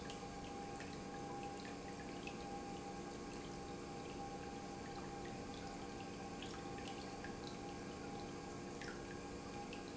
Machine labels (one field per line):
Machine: pump